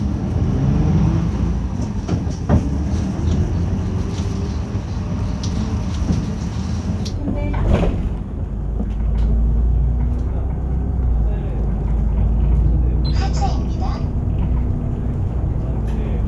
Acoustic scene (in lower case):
bus